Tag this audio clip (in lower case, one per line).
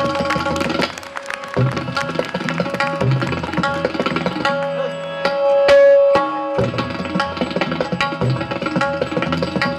musical instrument
tabla
percussion
music